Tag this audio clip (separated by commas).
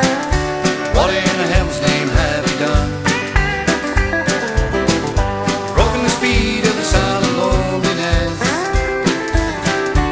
Music